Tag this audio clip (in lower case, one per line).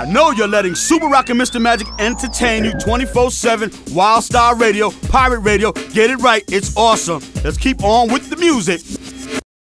music
speech